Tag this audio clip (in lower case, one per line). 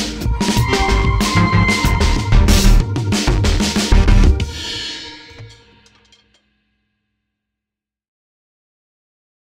drum
music
drum kit
bass drum